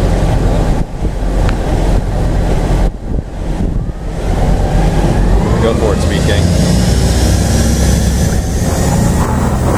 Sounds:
speech

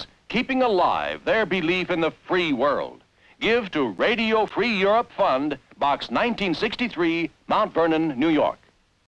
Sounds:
speech

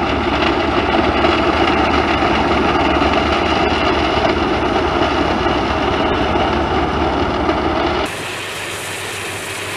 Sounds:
vehicle, engine, truck, heavy engine (low frequency)

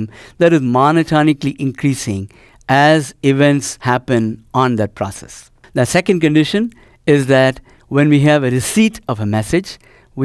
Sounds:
speech

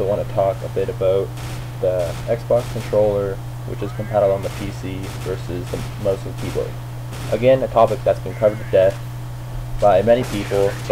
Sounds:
speech

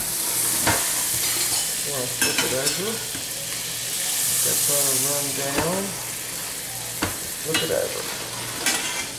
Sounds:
speech, inside a small room

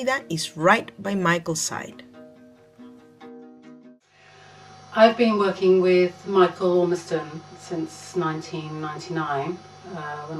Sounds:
speech, music

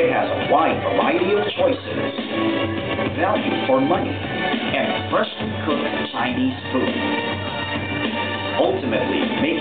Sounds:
speech, music

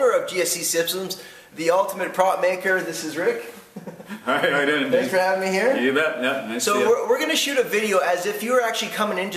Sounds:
speech

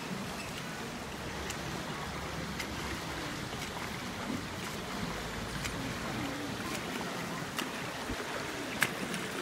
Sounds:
swimming

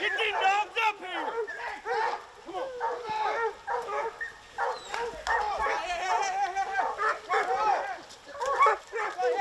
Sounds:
dog baying

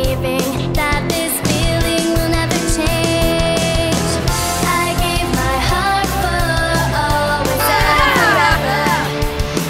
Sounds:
pop music, music, rhythm and blues, blues, exciting music

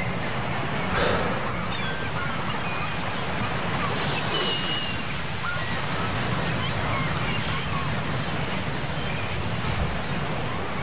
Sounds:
outside, rural or natural

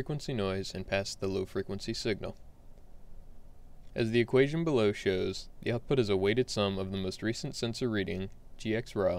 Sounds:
speech

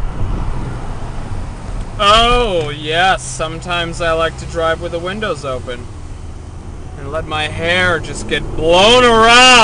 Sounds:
motor vehicle (road), car, speech, vehicle

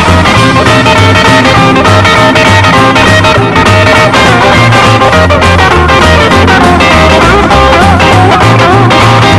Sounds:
music, rock and roll

